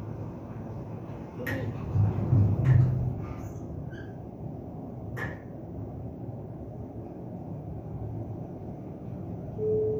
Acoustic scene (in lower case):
elevator